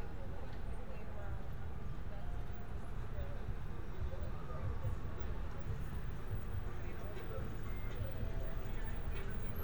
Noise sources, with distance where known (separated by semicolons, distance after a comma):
person or small group talking, far